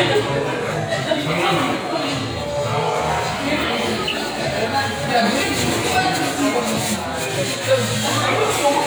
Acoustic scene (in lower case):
restaurant